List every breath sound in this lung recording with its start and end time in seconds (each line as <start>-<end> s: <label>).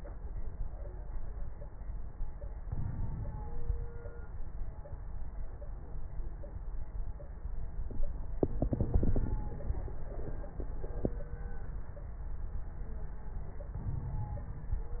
2.62-4.13 s: inhalation
2.62-4.14 s: crackles
8.49-10.12 s: inhalation
8.49-10.12 s: crackles
13.76-15.00 s: crackles
13.78-15.00 s: inhalation